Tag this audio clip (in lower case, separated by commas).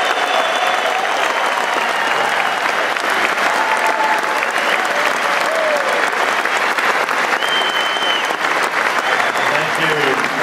speech